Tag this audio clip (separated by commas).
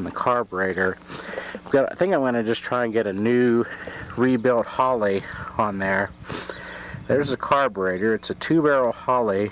Speech